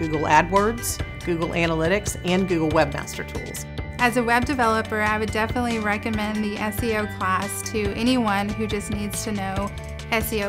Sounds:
Speech, Music

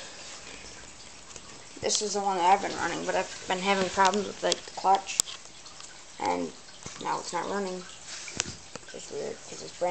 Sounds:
Speech

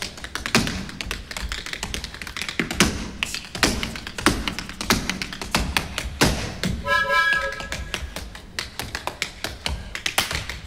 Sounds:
tap dancing

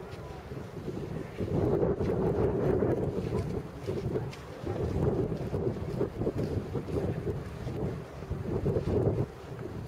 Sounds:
wind noise, Wind noise (microphone), Wind

